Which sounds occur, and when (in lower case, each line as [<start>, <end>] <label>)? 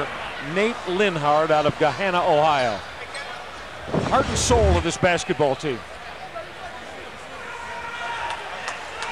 [0.00, 9.11] speech babble
[0.49, 2.80] man speaking
[3.01, 3.46] man speaking
[3.88, 5.74] man speaking
[3.90, 4.79] sound effect
[6.17, 6.83] man speaking
[7.32, 8.35] shout
[8.24, 8.37] clapping
[8.62, 8.68] clapping
[8.93, 9.02] clapping